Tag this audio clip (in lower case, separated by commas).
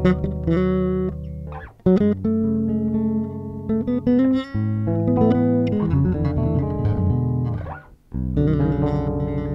musical instrument, guitar, inside a small room, bass guitar, plucked string instrument, music